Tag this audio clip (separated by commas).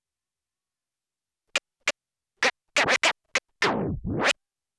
Musical instrument, Scratching (performance technique), Music